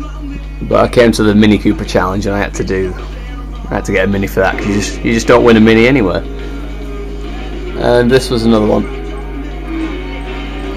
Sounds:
speech
music

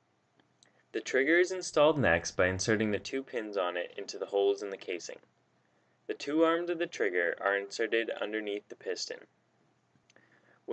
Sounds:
speech

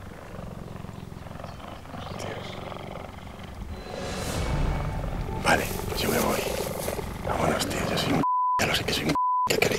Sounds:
cheetah chirrup

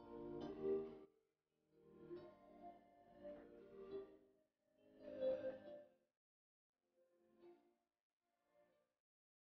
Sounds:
silence

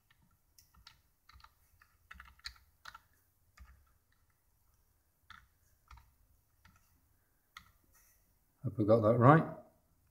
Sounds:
typing

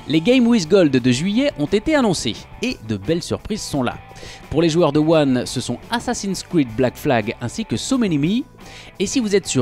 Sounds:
music
speech

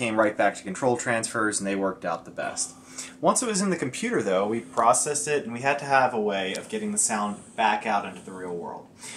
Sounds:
speech

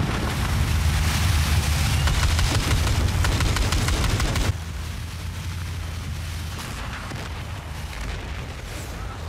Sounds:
sailboat

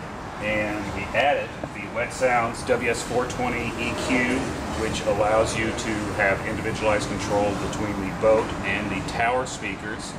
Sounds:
speech

